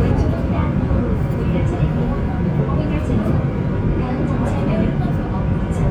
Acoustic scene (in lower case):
subway train